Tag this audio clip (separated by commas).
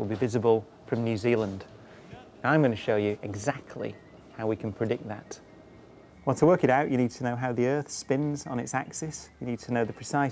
Speech